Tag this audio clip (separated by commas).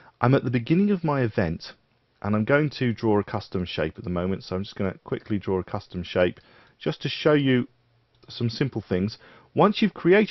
Speech